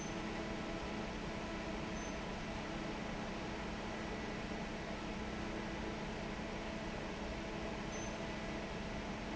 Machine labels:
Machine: fan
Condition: normal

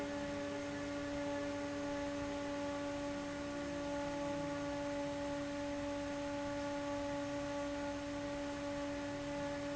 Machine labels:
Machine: fan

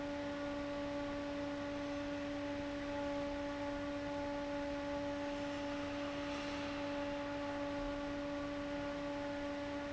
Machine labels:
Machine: fan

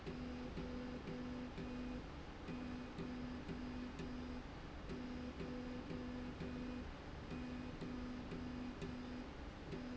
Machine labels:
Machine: slide rail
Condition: normal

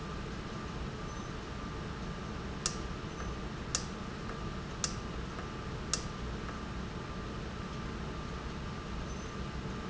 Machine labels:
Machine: valve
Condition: normal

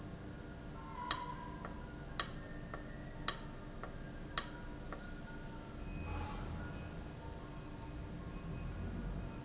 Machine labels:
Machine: valve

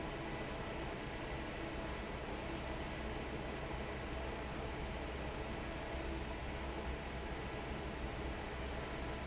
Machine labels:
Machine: fan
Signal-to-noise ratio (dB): 0 dB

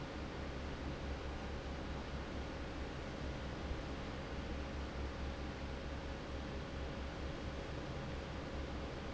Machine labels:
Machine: fan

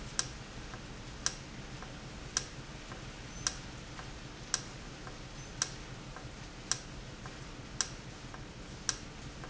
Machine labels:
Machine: valve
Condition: normal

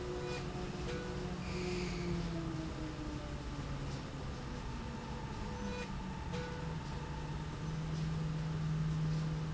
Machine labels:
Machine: slide rail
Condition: normal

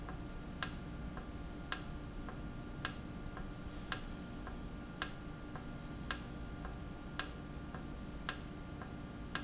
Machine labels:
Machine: valve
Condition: normal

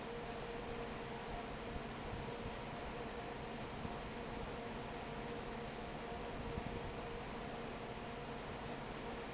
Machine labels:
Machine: fan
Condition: normal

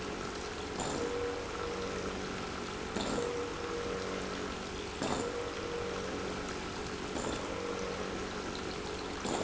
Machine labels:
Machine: pump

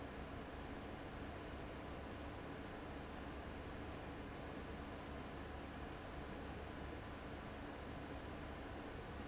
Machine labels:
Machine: fan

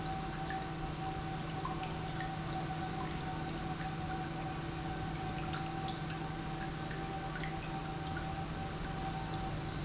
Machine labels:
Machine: pump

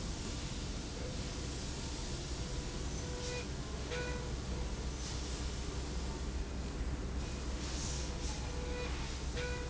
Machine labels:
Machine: slide rail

